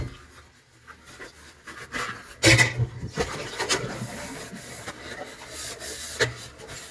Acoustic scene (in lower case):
kitchen